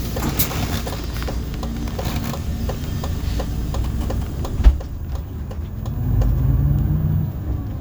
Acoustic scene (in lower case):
bus